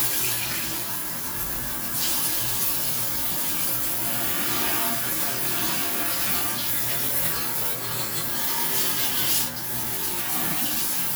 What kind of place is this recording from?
restroom